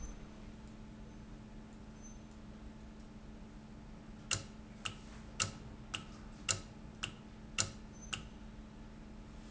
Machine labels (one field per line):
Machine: valve